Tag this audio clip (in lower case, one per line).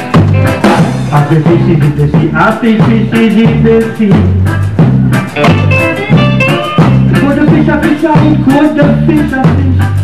music
independent music